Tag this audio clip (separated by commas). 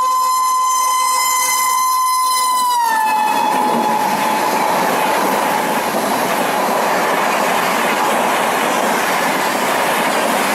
train whistling